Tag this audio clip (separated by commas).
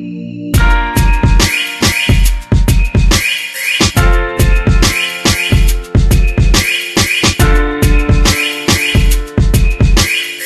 Music